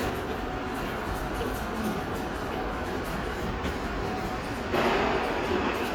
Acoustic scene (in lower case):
subway station